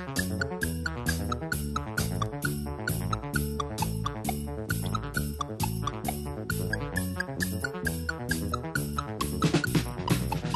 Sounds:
music

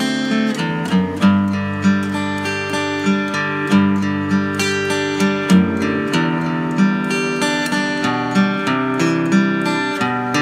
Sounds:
music

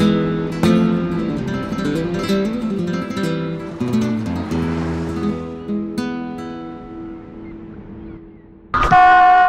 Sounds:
music

